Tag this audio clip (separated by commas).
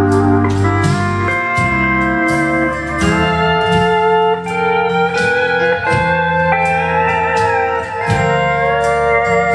Plucked string instrument, Musical instrument, Music, Steel guitar